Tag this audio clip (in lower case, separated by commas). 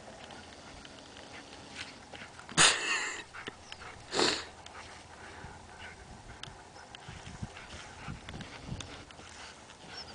animal, dog, pets